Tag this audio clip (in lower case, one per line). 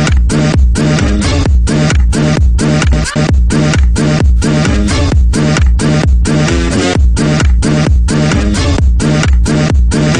music